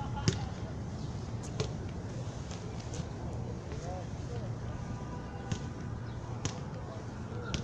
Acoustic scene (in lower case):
park